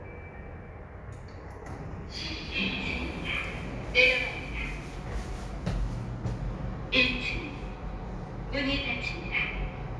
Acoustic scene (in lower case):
elevator